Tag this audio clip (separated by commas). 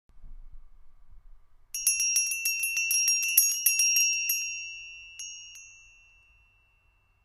Bell